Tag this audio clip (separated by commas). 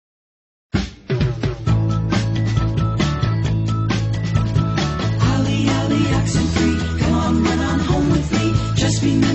Music